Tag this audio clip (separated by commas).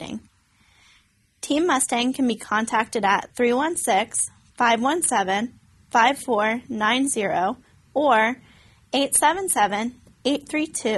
Speech